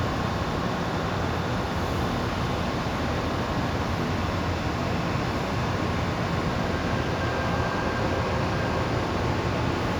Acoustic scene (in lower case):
subway station